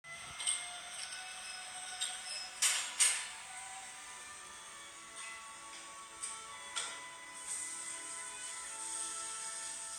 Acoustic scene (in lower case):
cafe